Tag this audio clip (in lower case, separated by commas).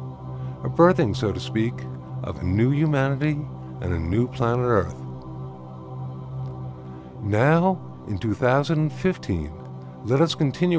speech, music